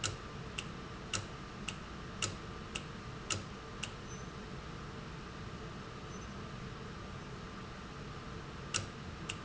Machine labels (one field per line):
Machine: valve